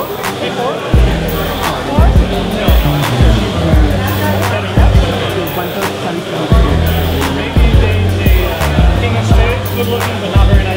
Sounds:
music
speech
inside a large room or hall

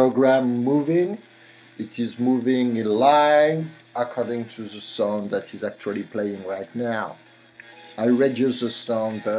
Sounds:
speech

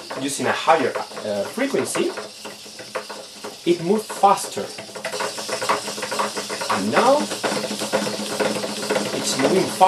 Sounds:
speech

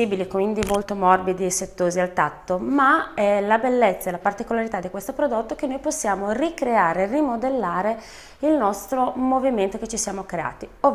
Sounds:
speech

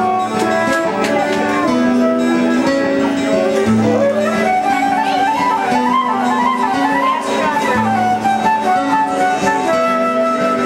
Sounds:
music
musical instrument
acoustic guitar
speech
strum
guitar
plucked string instrument

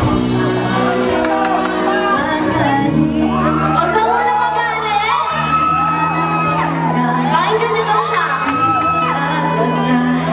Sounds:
music
female singing
speech

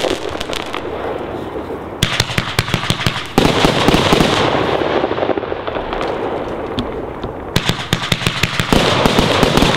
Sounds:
fireworks

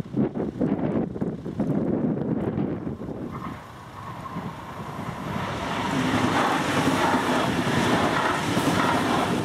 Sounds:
wind noise (microphone)

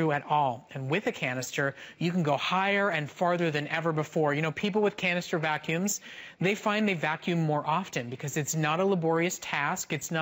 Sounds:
speech

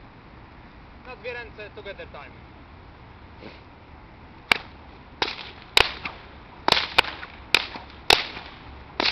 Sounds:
whip

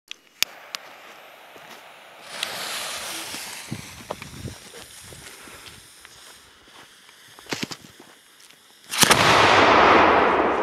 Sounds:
fireworks
fireworks banging

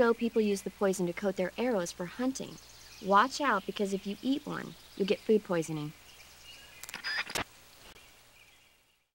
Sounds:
speech

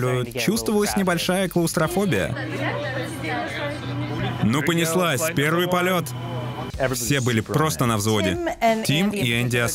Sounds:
speech

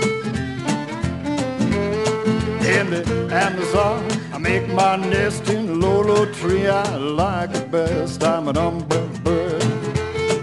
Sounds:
music

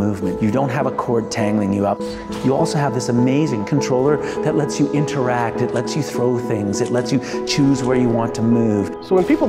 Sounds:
speech
music

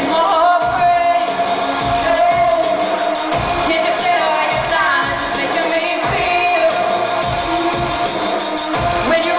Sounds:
music

